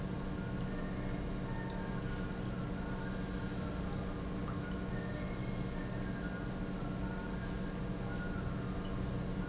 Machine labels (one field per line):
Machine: pump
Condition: normal